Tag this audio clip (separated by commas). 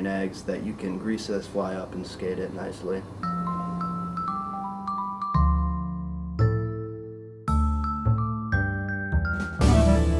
Music, Speech